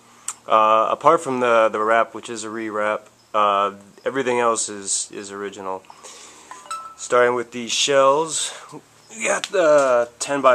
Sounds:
Speech

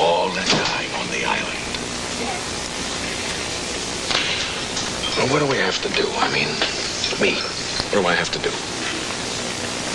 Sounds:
White noise

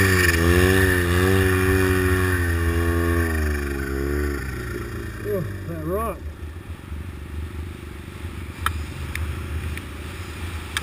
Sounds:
Speech

